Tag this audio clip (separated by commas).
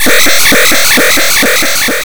Alarm